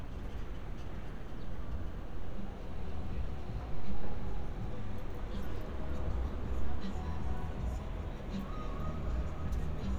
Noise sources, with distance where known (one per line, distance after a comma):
engine of unclear size, near
music from an unclear source